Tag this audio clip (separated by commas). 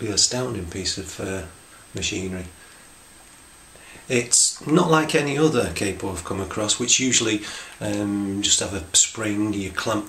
Speech